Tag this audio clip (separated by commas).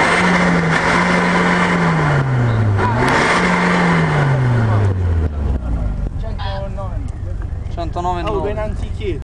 vroom, Vehicle, Car, Speech